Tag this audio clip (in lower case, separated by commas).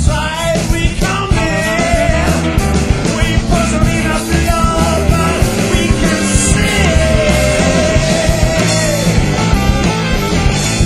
music